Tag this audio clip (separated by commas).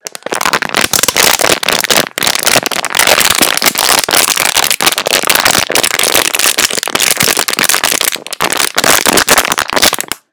Crumpling